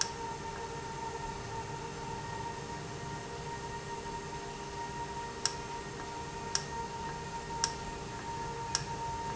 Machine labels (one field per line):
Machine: valve